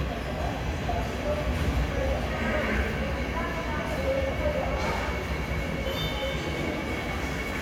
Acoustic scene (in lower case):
subway station